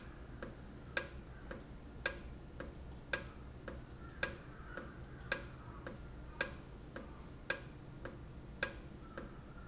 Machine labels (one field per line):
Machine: valve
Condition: normal